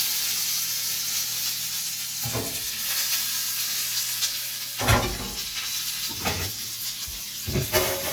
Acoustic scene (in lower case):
kitchen